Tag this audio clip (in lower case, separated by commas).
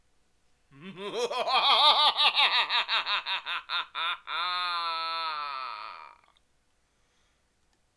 laughter, human voice